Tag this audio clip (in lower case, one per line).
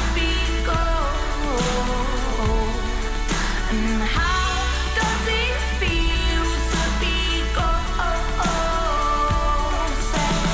music of asia